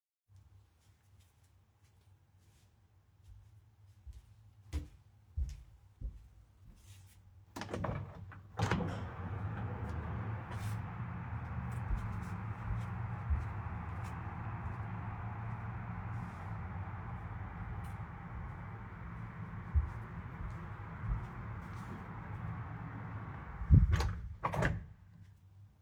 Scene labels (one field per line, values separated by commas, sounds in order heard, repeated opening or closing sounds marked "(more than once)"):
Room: living room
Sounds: footsteps, window (more than once)